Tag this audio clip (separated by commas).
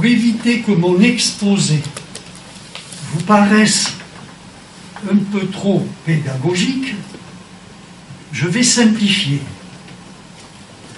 Speech